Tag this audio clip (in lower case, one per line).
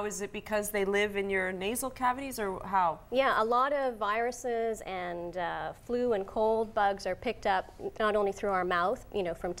speech